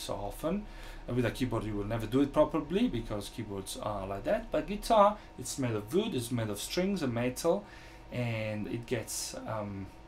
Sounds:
speech

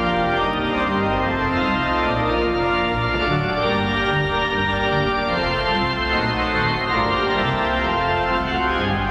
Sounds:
music
classical music

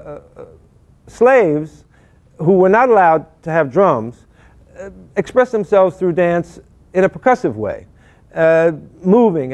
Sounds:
speech

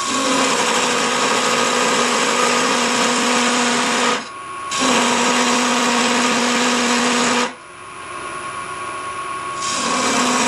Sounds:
tools

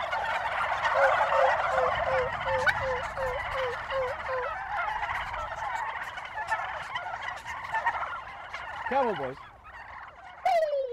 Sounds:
turkey gobbling

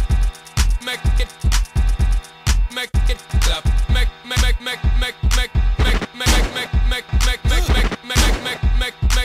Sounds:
music
disco

